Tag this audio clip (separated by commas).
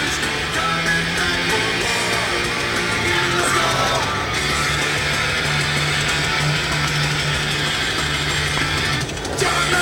Music